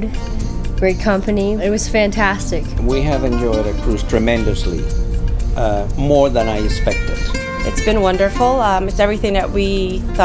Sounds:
Music, Speech

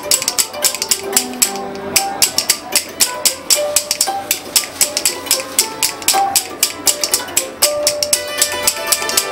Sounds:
Musical instrument, Music

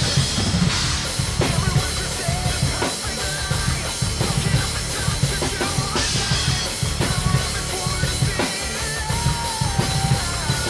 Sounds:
Bass drum, Music, Drum kit, Musical instrument, Drum

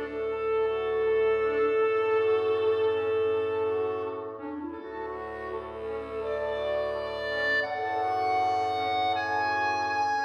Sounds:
Music

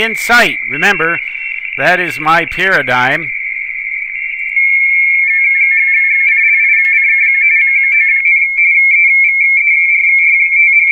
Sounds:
Speech

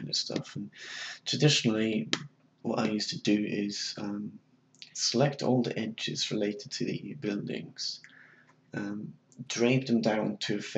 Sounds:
Speech

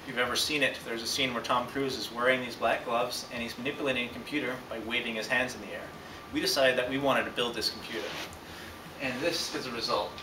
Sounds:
Speech

